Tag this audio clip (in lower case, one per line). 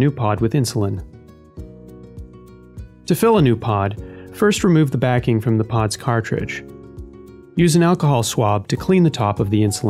music
speech